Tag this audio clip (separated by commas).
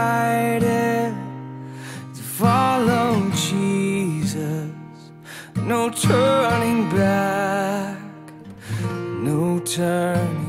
Music